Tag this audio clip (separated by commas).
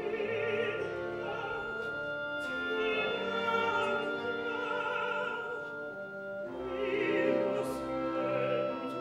Opera, Music